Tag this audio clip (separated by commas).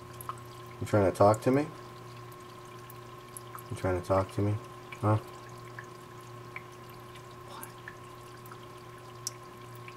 Speech